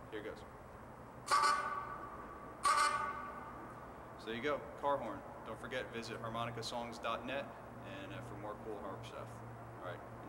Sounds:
Speech

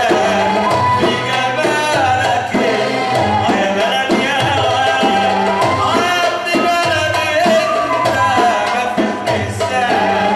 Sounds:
Music

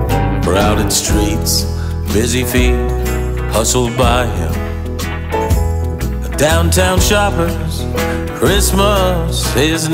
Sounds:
Music, Christmas music

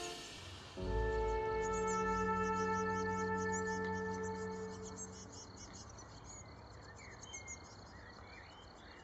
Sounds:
black capped chickadee calling

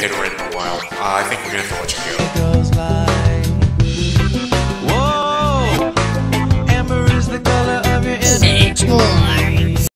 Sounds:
Music, Speech

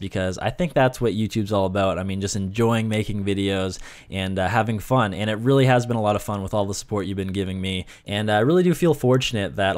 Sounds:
Speech

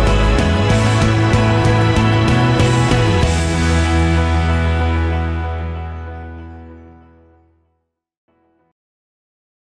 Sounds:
Music

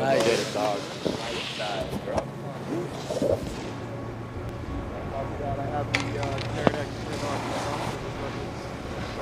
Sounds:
skiing

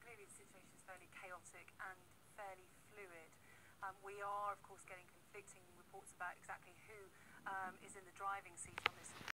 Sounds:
Speech

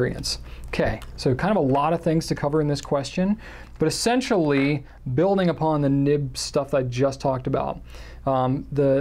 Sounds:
Speech

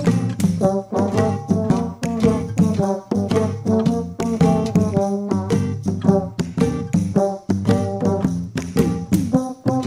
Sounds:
French horn, Brass instrument

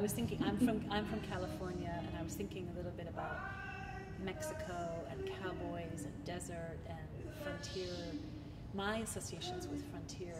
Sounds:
Music, Speech

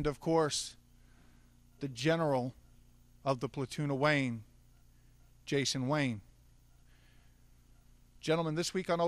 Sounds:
Speech

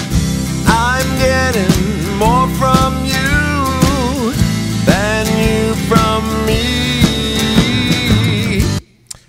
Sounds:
Music, Speech, Vocal music

